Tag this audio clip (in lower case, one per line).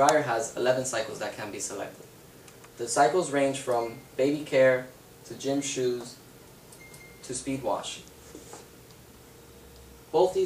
speech
inside a small room